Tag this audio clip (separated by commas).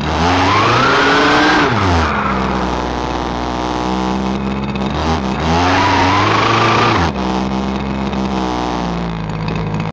Vehicle, Car